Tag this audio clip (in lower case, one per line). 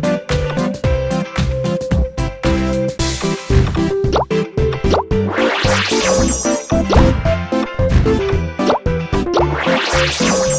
plop
music